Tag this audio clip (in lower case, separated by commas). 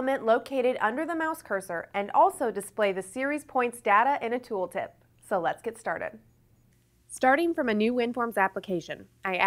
speech